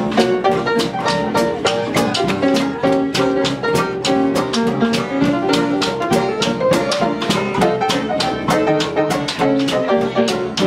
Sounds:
jazz, musical instrument, music, blues

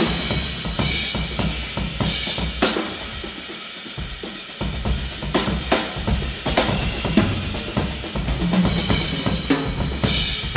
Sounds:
drum, musical instrument, drum kit, bass drum, music

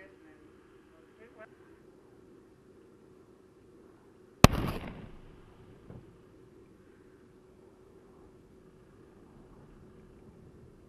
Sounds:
outside, rural or natural, silence

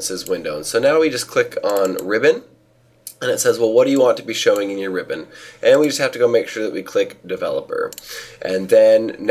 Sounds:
speech

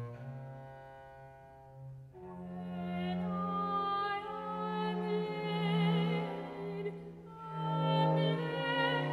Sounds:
opera, classical music

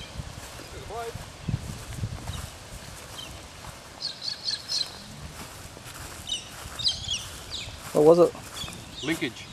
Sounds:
speech, bird, outside, rural or natural

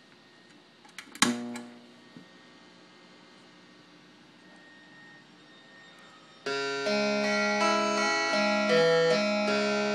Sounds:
playing harpsichord

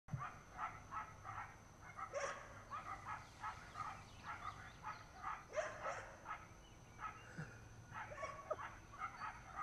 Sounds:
outside, rural or natural, dog, inside a small room, animal

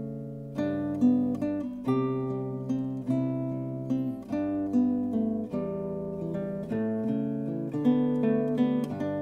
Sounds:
guitar, plucked string instrument, acoustic guitar, music, musical instrument

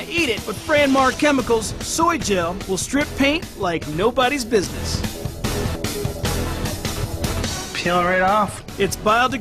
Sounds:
music, speech

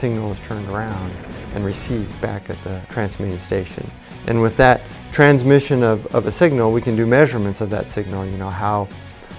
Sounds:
music, speech

